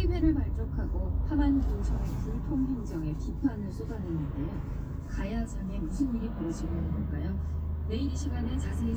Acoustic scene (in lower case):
car